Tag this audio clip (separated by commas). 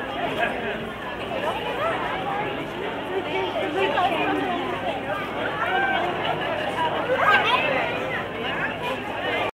Speech